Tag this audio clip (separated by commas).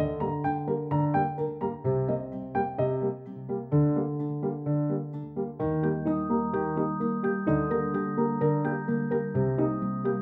Electric piano